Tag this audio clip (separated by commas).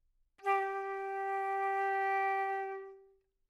Musical instrument, Music, Wind instrument